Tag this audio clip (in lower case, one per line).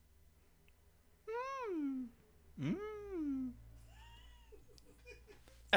human voice